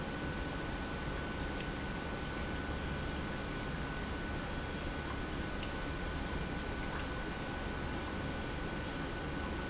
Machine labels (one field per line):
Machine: pump